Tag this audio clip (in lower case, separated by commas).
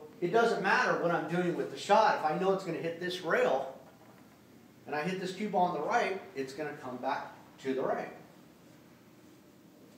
striking pool